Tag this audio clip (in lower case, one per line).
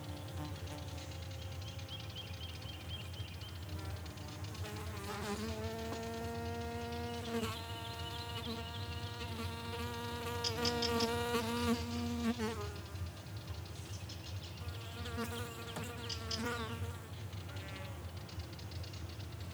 insect
buzz
animal
wild animals